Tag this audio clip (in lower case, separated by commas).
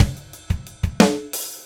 musical instrument, percussion, drum kit, music